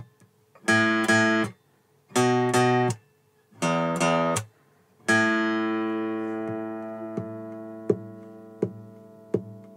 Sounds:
Musical instrument, Plucked string instrument, Electric guitar, Guitar, Music, Strum

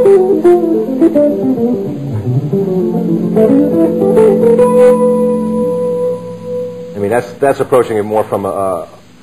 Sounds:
Music, Speech, Acoustic guitar, Musical instrument, Strum, Guitar, Plucked string instrument

